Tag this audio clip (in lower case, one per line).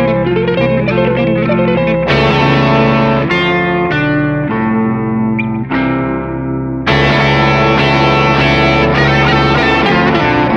guitar
effects unit
musical instrument
music
electric guitar